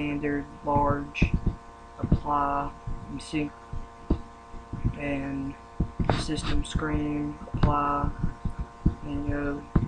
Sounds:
Speech

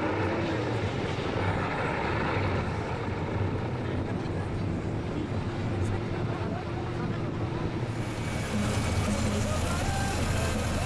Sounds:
Vehicle, Speech, Bus

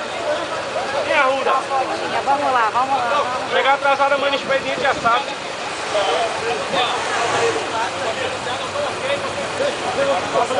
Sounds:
Speech

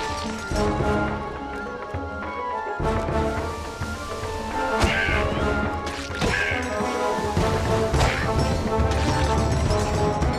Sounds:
Music

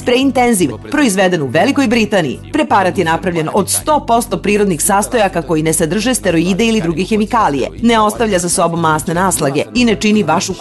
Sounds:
Music, Speech

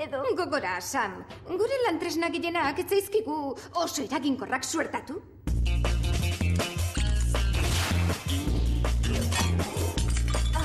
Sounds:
Music, Speech

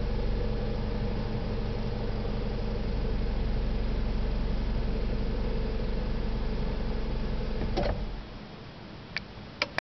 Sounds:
Engine

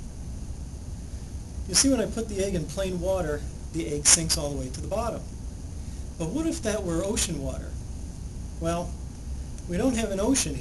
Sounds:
Speech

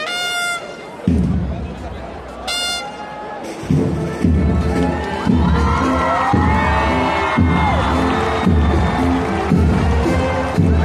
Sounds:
people marching

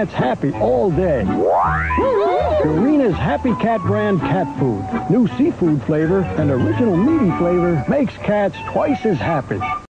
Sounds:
Music, Speech

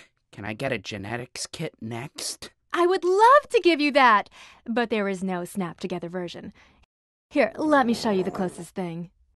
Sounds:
inside a small room, Speech

